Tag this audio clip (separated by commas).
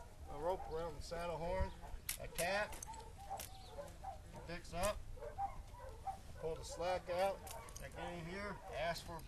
Speech, Animal, outside, rural or natural